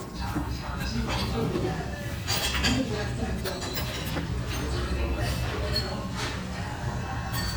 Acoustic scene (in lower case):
restaurant